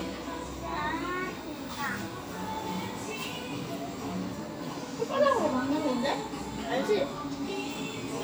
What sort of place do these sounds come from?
cafe